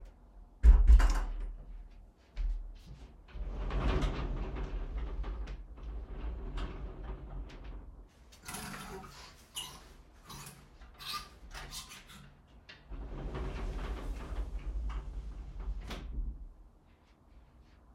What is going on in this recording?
I opened the door, walked in my bedroom, turned on the lights, closed the door, opened the wardrobe and looked for some clothes, then closed the wardrobe again